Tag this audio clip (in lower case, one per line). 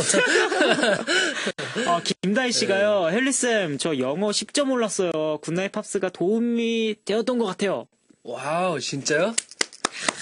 speech